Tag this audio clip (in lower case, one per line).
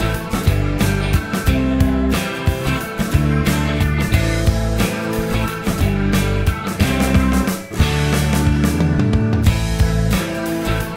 music